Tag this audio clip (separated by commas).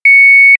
Telephone, Alarm